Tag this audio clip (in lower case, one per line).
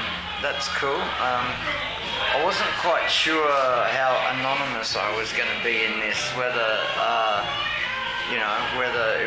music
speech